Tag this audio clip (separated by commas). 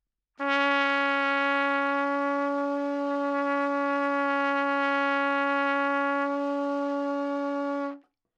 Brass instrument, Trumpet, Musical instrument, Music